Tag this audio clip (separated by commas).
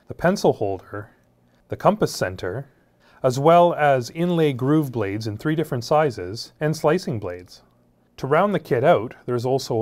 Speech